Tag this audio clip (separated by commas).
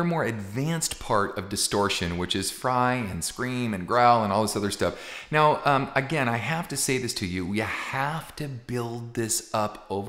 Speech